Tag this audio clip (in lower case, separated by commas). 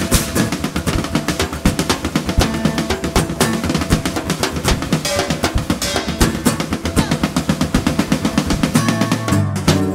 musical instrument, country, rimshot, music, guitar, percussion